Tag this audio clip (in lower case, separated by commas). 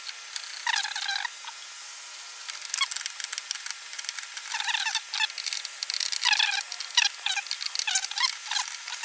speech, inside a small room